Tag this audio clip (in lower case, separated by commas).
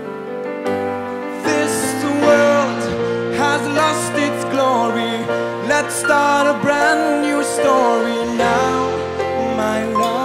music